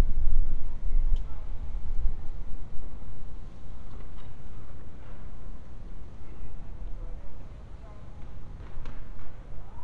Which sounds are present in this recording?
siren